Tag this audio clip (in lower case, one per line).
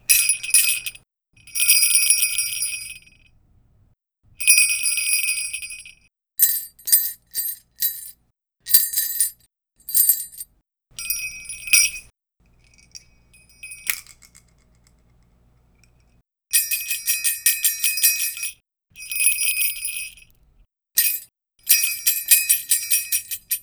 bell